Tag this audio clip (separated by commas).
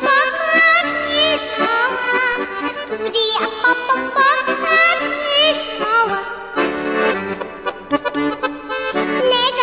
child singing